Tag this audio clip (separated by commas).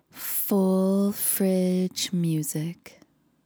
Speech, Human voice, Female speech